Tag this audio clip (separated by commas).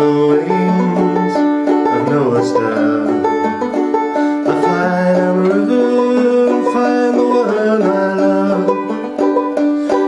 playing banjo, Banjo, Music